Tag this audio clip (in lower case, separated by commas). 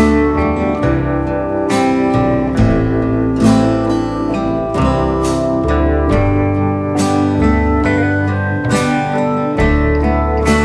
music, acoustic guitar